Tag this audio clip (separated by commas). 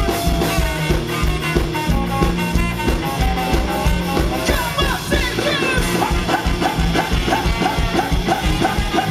Music